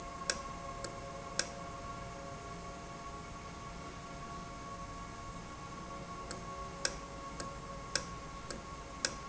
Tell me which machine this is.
valve